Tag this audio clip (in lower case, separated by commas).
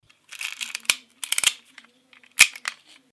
mechanisms, camera